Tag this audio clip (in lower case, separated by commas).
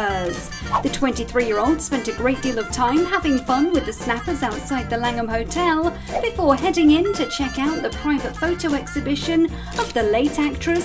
speech, music